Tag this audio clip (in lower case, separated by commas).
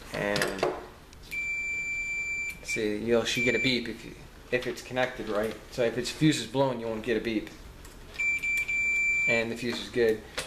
speech